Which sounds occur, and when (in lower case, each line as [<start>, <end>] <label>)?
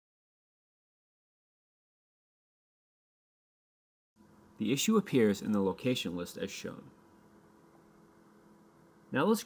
[4.13, 9.45] mechanisms
[4.58, 6.80] male speech
[5.46, 5.59] clicking
[7.67, 7.82] tap